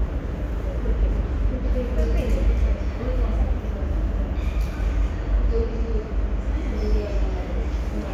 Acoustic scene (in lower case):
subway station